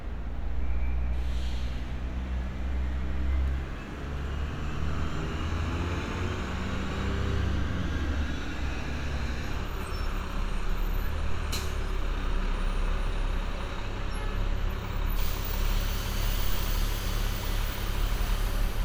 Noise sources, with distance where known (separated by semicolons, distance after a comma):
large-sounding engine